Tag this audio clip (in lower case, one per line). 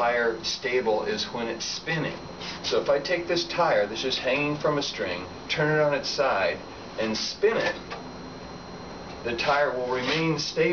speech